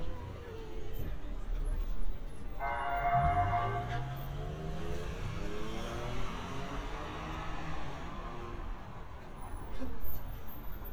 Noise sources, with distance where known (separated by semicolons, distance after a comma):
medium-sounding engine, near; unidentified alert signal, near; person or small group talking